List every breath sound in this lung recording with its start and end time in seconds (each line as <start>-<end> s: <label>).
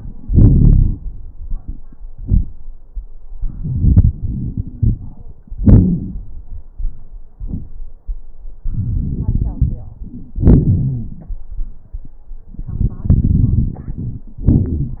0.24-0.97 s: exhalation
0.24-0.97 s: crackles
3.40-5.58 s: inhalation
4.35-4.97 s: wheeze
5.59-6.64 s: exhalation
5.59-6.64 s: crackles
8.64-10.35 s: inhalation
8.64-10.35 s: crackles
10.36-11.12 s: wheeze
10.36-11.38 s: exhalation
12.53-14.31 s: inhalation
12.53-14.31 s: crackles
14.40-15.00 s: exhalation
14.40-15.00 s: crackles